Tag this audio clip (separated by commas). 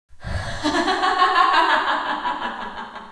Human voice, Laughter